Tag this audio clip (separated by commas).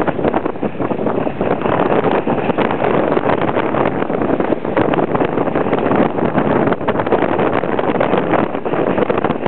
wind noise, Wind noise (microphone)